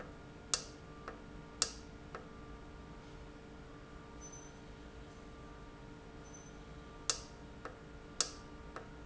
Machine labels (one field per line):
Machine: valve